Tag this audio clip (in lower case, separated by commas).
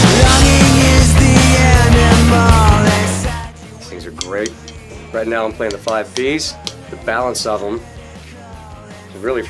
music, speech